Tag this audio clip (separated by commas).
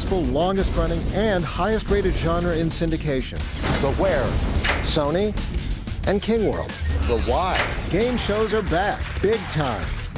Speech, Music